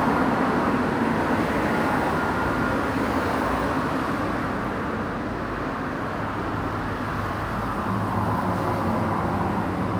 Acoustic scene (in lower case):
residential area